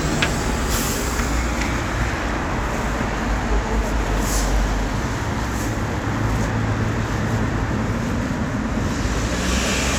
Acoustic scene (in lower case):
street